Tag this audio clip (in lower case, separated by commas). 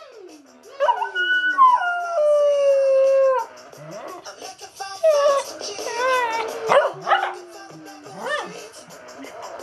pets, animal, music, dog, howl